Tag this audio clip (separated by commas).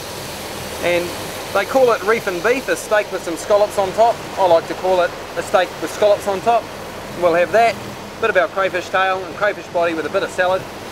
Speech, outside, rural or natural